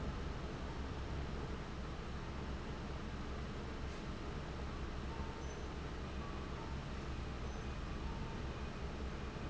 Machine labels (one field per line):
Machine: fan